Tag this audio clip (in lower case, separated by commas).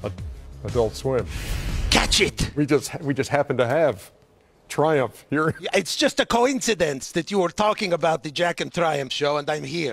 music, speech